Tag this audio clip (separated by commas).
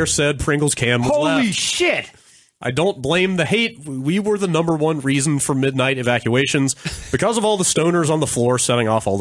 Speech